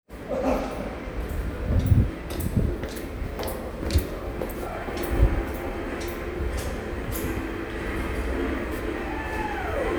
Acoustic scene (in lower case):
subway station